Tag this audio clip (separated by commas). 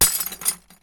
Glass, Shatter, Crushing